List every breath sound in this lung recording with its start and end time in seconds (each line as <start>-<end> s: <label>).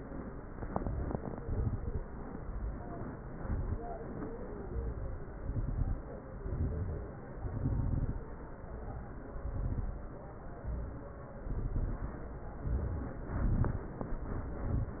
0.67-1.38 s: inhalation
0.67-1.38 s: crackles
1.41-2.12 s: exhalation
1.41-2.12 s: crackles
2.36-3.08 s: inhalation
2.36-3.08 s: crackles
3.17-3.82 s: exhalation
3.17-3.82 s: crackles
4.60-5.24 s: inhalation
4.60-5.24 s: crackles
5.34-5.98 s: exhalation
5.34-5.98 s: crackles
6.38-7.14 s: inhalation
6.38-7.14 s: crackles
7.37-8.23 s: exhalation
7.37-8.23 s: crackles
8.70-9.35 s: inhalation
9.41-10.05 s: exhalation
9.41-10.05 s: crackles
10.64-11.29 s: inhalation
11.50-12.14 s: exhalation
11.50-12.14 s: crackles
12.64-13.28 s: inhalation
12.64-13.28 s: crackles
13.34-13.98 s: exhalation
13.34-13.98 s: crackles
14.56-15.00 s: inhalation
14.56-15.00 s: crackles